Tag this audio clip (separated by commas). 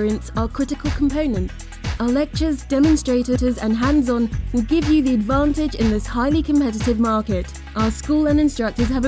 Music, Speech